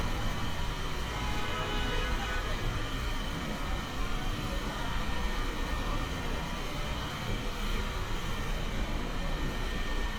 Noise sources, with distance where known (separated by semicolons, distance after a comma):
engine of unclear size, near; car horn; unidentified human voice, near